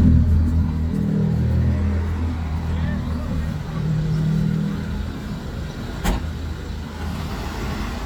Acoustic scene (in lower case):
street